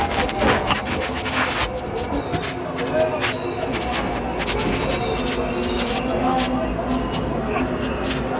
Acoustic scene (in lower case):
subway station